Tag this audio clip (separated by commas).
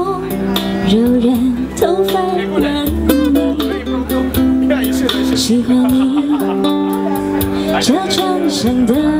Speech, Music, Female singing